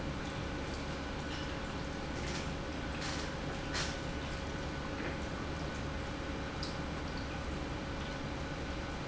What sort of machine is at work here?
pump